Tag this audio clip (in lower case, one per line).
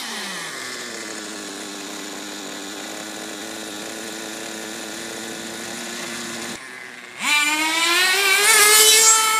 vroom
vehicle
car